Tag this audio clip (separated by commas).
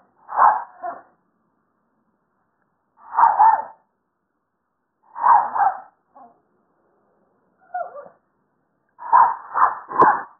Animal, Dog, Bark, Domestic animals, dog barking